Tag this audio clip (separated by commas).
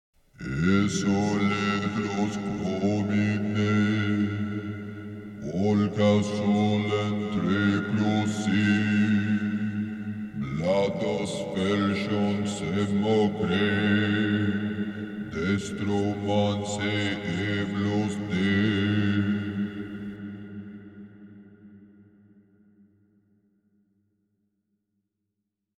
Human voice, Singing